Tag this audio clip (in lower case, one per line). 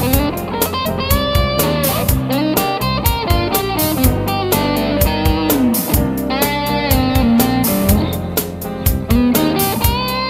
strum
plucked string instrument
guitar
music
electric guitar
musical instrument